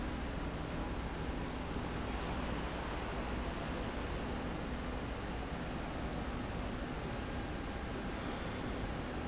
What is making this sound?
slide rail